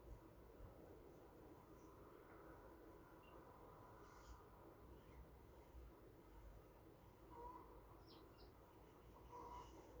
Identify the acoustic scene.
park